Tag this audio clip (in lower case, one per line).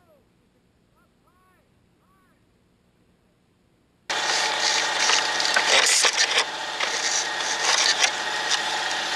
speech